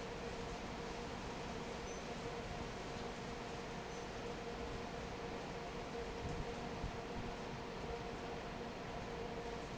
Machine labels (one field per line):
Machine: fan